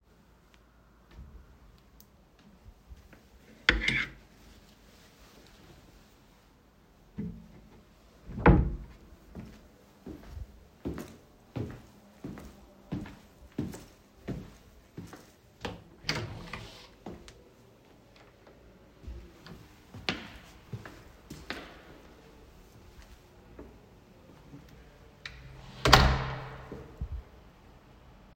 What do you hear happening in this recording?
I took out the hanger with the t-shirt, closed the wardrobe, walked out of apartment and closed the door.